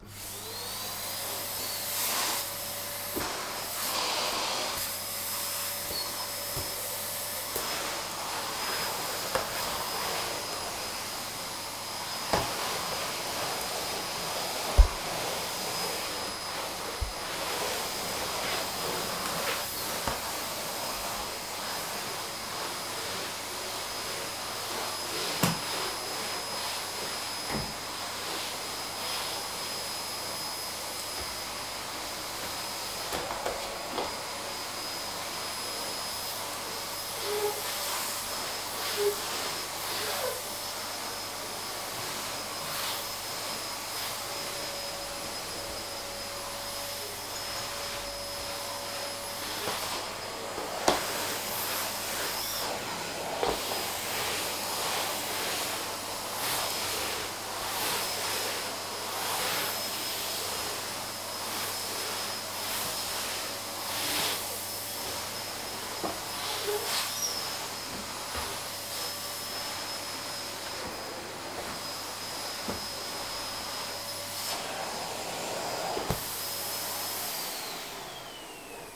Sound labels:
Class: vacuum cleaner